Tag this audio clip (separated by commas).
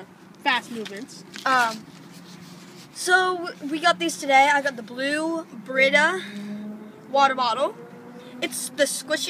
Speech, kid speaking